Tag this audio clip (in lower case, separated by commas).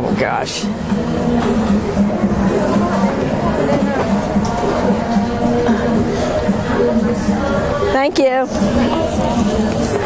speech, music, inside a public space